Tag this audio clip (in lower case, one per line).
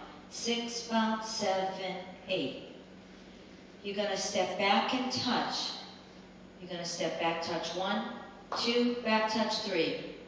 speech